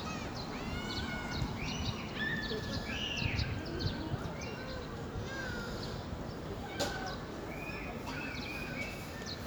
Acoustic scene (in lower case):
residential area